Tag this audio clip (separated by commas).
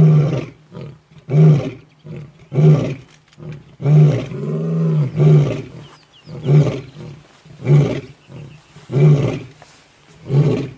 Roar